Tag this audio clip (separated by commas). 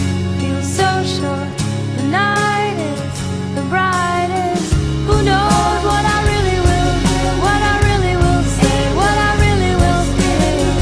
Music